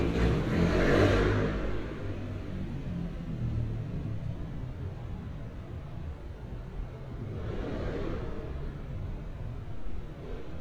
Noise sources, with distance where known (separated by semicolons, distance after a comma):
medium-sounding engine, near